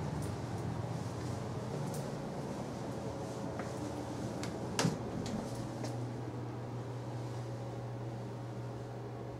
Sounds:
cupboard open or close

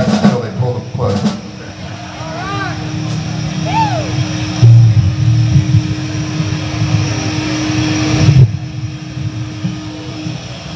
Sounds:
music, speech, musical instrument, guitar, plucked string instrument, bass guitar

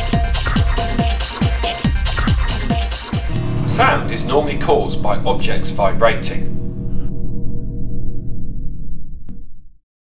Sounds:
music, speech

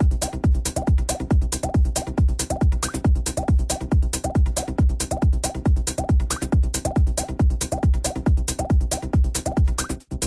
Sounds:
electronic music, techno, music

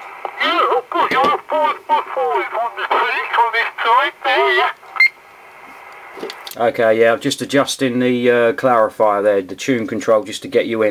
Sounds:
speech, radio

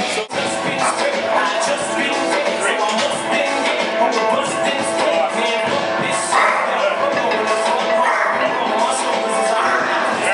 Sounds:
music

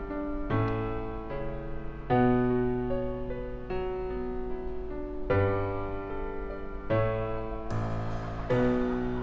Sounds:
music

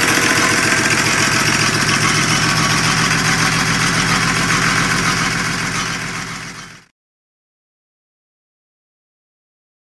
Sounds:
idling, engine

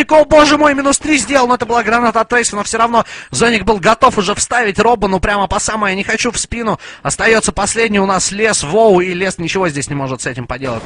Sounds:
speech

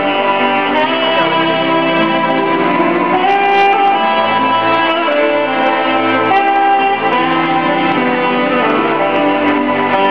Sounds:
theme music, music

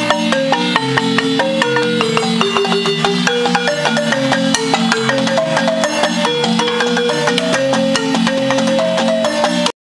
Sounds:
music

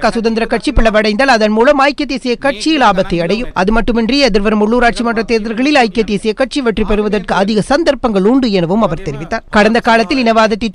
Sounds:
speech, man speaking, narration

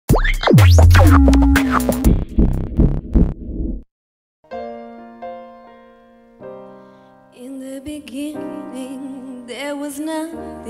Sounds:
music, singing, inside a large room or hall

